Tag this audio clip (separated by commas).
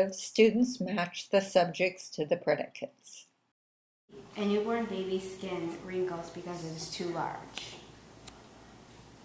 Speech